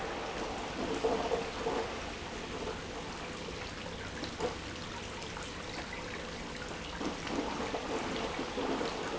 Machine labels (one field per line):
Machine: pump